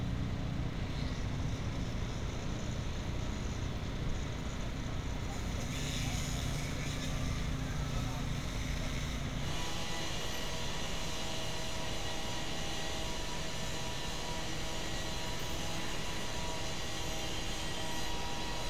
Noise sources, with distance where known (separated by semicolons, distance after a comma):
unidentified powered saw